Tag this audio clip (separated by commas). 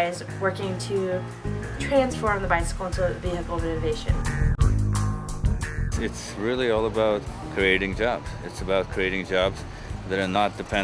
Speech, Music